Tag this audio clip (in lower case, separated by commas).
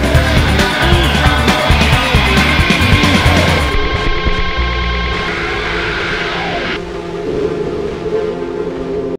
music, angry music